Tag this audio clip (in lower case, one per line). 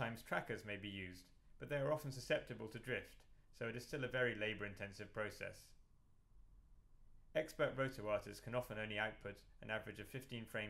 speech